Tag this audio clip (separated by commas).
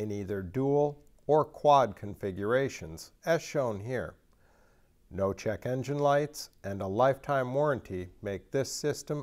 Speech